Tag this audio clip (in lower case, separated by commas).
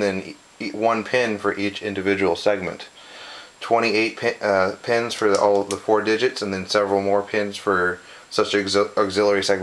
speech